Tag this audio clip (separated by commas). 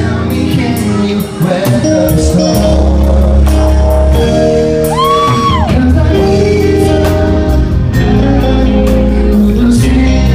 Music, Male singing